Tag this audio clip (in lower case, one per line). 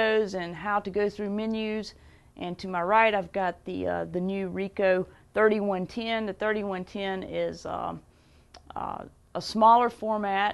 speech